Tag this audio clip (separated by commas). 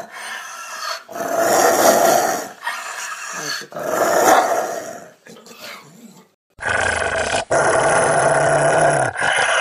dog growling